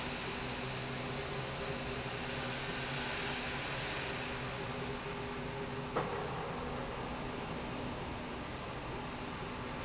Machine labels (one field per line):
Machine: slide rail